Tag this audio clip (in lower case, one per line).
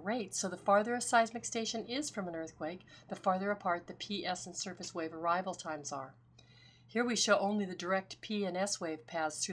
speech